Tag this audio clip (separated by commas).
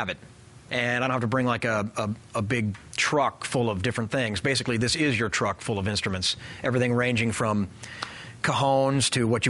Speech